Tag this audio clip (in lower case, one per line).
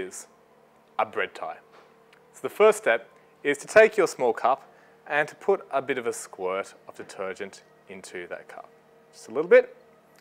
speech